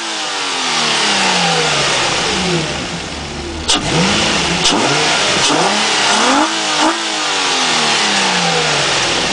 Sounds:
engine
vehicle
accelerating
medium engine (mid frequency)

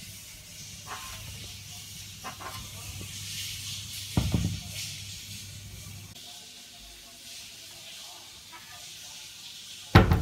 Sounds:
cupboard opening or closing

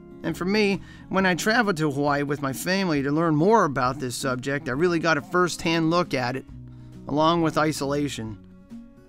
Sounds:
music
speech

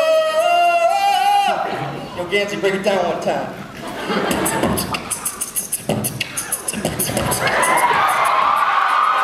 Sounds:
speech

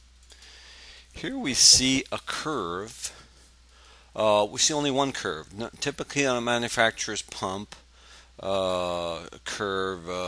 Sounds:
speech

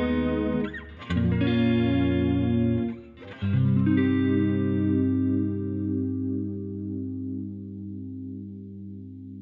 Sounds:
guitar
musical instrument
plucked string instrument
inside a small room
music

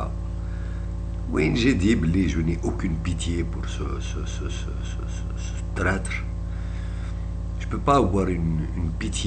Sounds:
speech

